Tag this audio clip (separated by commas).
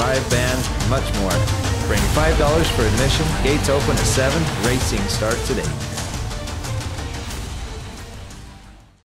Music, Speech